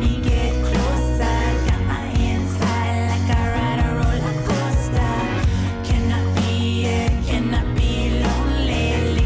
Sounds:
Independent music

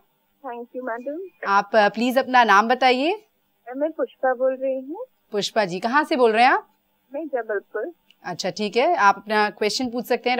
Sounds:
Speech

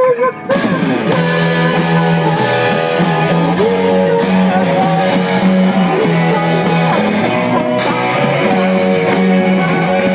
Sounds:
Music

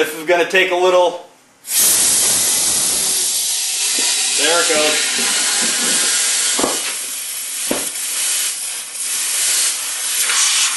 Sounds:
Speech

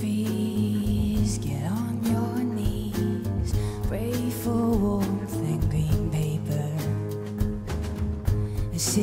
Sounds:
Music

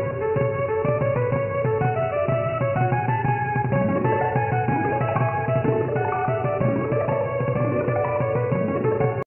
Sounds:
Music

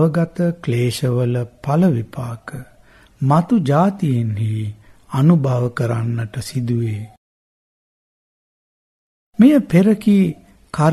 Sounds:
Speech

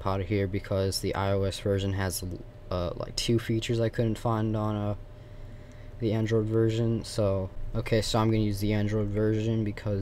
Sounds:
Speech

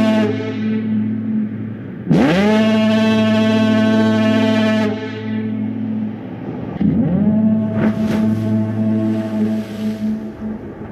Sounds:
foghorn

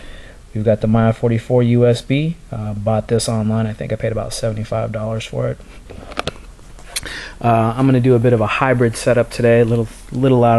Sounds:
Speech

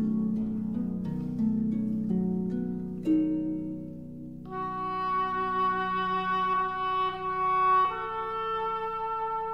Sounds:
Music

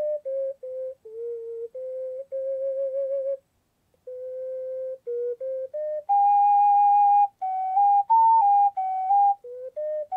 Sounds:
woodwind instrument

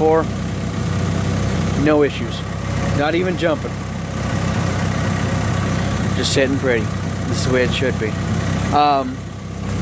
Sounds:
car engine idling

